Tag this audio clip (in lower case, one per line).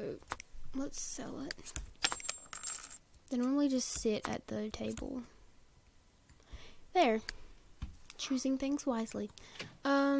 speech